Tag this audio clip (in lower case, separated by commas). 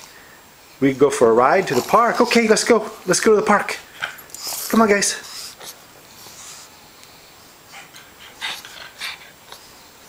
animal, dog, domestic animals, speech